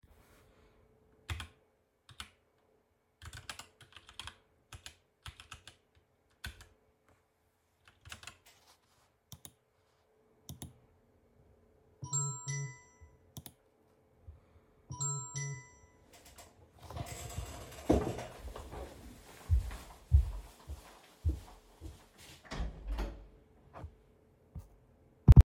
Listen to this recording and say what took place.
I was typing on the keyboard, then a friend called me, I got up from my chair and went to the door to open it.